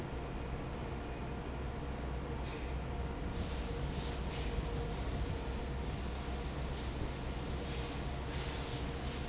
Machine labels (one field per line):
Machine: fan